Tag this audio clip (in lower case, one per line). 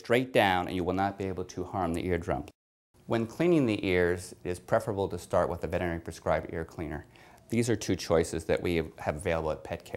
speech